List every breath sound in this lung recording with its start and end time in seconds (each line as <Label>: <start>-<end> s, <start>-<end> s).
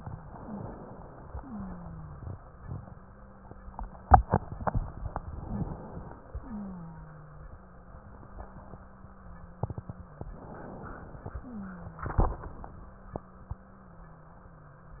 Inhalation: 0.23-1.33 s, 5.28-6.38 s, 10.30-11.40 s
Wheeze: 0.32-0.64 s, 1.35-5.15 s, 5.41-5.72 s, 6.39-10.20 s, 11.44-15.00 s